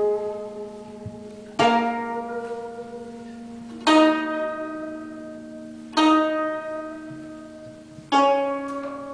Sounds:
Zither, Pizzicato

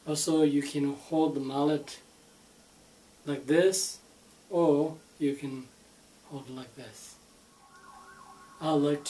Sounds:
Speech

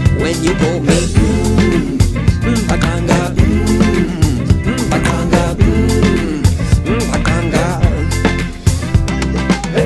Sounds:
Music of Africa, Music

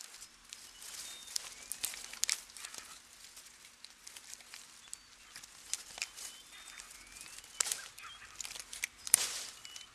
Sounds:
Wild animals, Animal

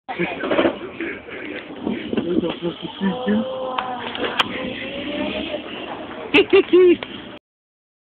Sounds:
Speech

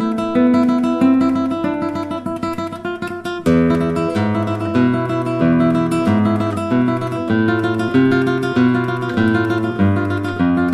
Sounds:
Flamenco

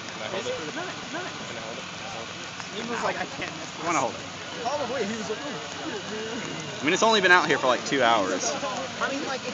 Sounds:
outside, urban or man-made, Speech

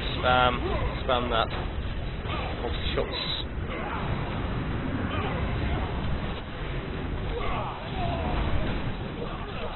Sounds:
Speech

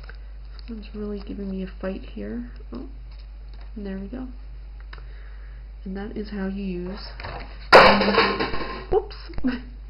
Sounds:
Speech, inside a small room

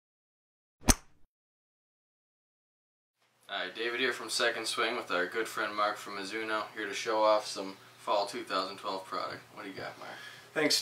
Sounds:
Speech, inside a small room

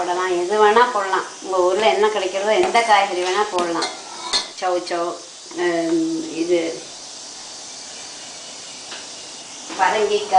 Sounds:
Speech, inside a small room

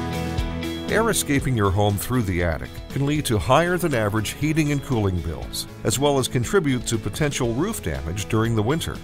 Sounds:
Music, Speech

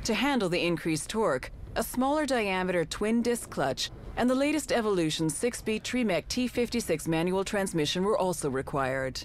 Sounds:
Speech

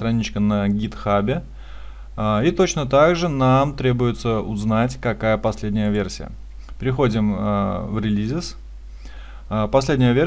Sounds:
Speech

